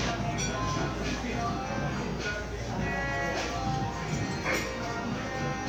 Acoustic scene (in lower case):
crowded indoor space